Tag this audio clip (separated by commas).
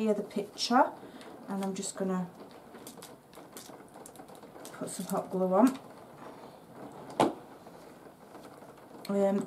inside a small room, Speech